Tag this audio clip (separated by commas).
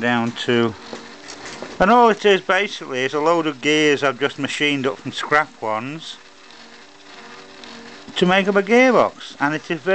Speech, Engine